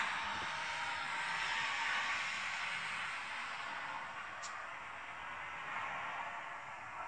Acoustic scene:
street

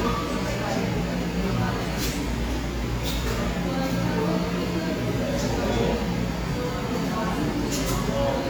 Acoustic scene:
cafe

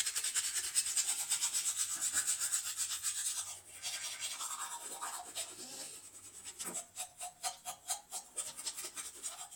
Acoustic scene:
restroom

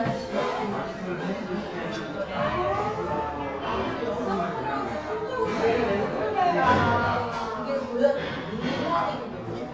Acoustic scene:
crowded indoor space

